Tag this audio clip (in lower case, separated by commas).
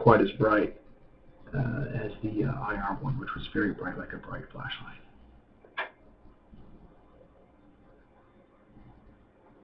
speech